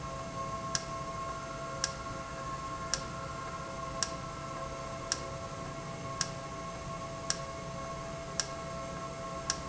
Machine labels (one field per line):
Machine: valve